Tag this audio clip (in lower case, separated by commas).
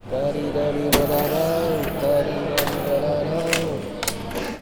human voice, singing, coin (dropping), home sounds